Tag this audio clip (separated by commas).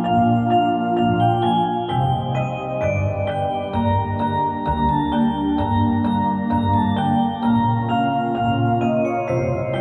Music